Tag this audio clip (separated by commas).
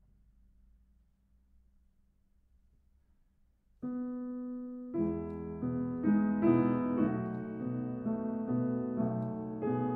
playing castanets